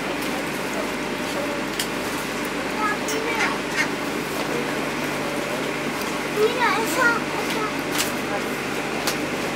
A duck is quacking while people are talking